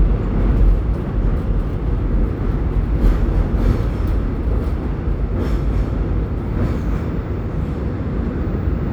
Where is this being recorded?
on a subway train